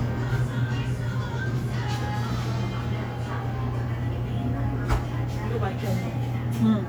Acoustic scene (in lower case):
cafe